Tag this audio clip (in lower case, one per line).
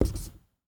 writing
home sounds